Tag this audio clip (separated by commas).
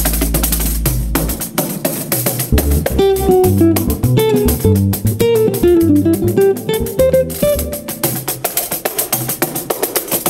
Guitar, Cello, Music, Double bass, Musical instrument